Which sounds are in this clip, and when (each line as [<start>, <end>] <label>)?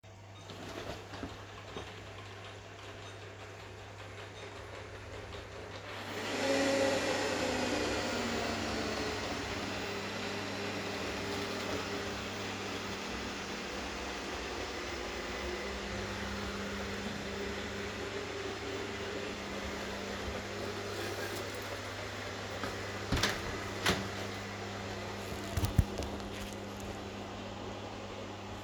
[0.01, 28.63] vacuum cleaner
[21.02, 22.59] keys
[22.94, 24.24] door